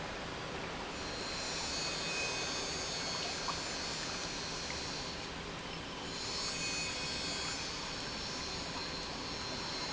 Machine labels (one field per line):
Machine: pump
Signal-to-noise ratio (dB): -6 dB